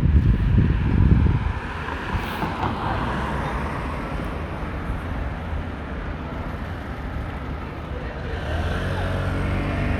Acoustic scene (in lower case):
street